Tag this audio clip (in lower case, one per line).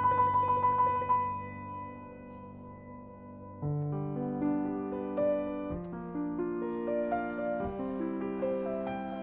music